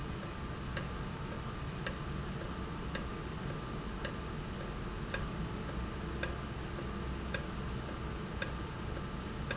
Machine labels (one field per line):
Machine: valve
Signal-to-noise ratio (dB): -6 dB